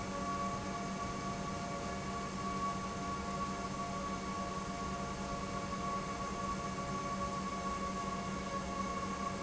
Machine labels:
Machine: pump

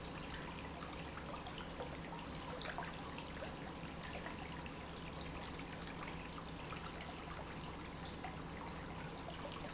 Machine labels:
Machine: pump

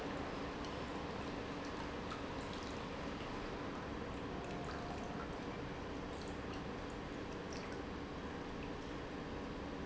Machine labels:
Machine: pump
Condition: normal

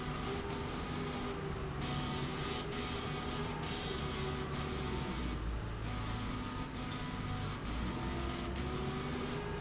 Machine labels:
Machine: slide rail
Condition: abnormal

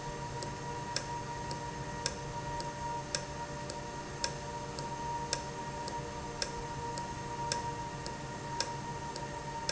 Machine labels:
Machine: valve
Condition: normal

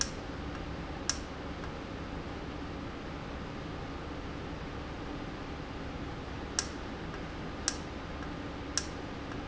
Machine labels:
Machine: valve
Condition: normal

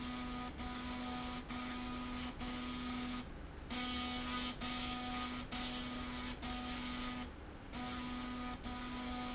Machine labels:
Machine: slide rail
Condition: abnormal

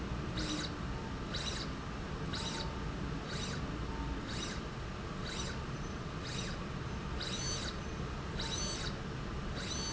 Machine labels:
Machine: slide rail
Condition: abnormal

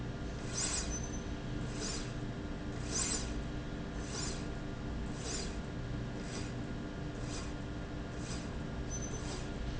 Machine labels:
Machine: slide rail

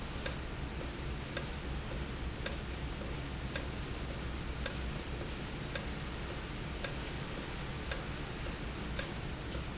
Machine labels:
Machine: valve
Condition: normal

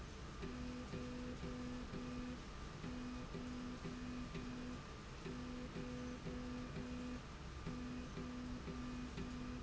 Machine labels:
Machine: slide rail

